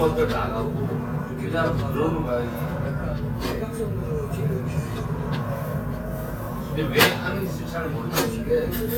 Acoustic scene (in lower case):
restaurant